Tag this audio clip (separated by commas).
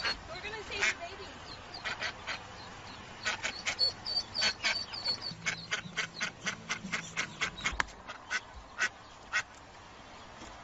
Quack, Speech, Duck, Animal